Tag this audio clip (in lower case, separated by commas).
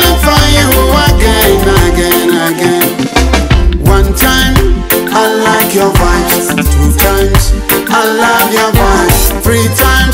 music of africa, afrobeat, reggae, music